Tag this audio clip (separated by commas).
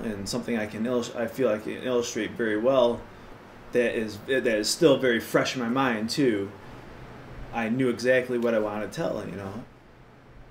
Speech